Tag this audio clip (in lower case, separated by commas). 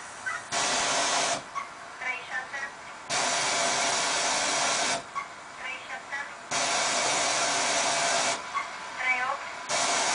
radio, speech